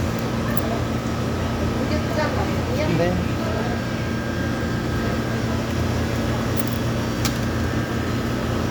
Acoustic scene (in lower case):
cafe